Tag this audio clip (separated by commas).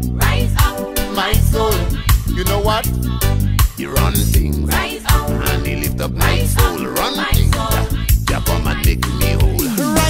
Music of Africa, Music